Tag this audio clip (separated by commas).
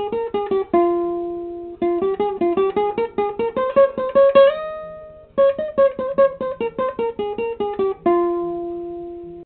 Music